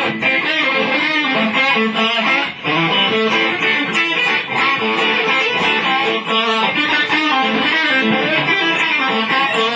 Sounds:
strum
musical instrument
plucked string instrument
guitar
music

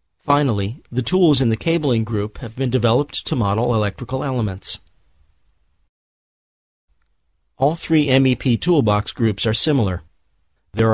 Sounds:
speech

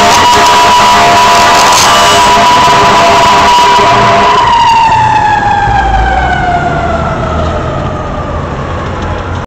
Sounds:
vehicle

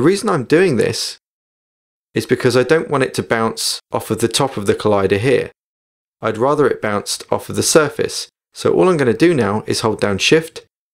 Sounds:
speech

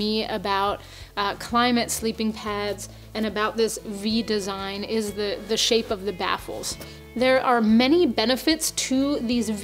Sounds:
music
speech

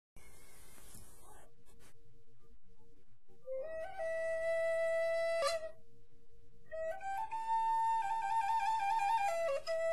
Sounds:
flute
music

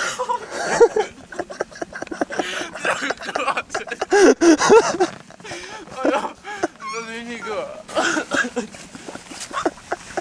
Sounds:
speech

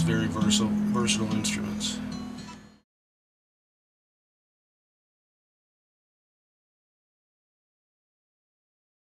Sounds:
plucked string instrument
musical instrument
speech
guitar
music

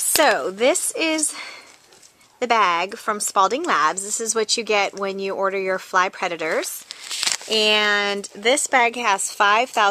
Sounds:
speech

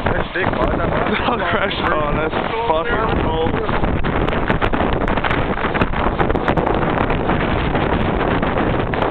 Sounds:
speech

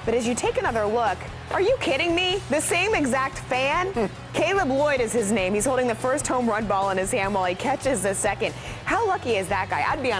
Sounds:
speech
music

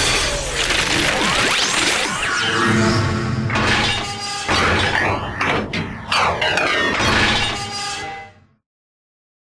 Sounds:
sound effect

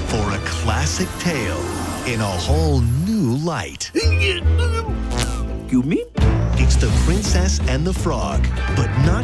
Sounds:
music
speech

